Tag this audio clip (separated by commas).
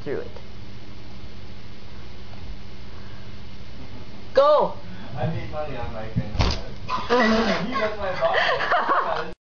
Speech